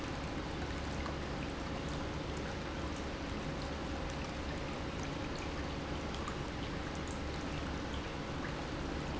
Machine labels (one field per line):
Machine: pump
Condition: normal